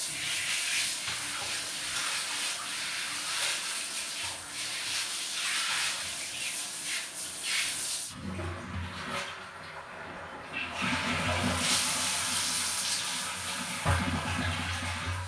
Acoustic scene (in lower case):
restroom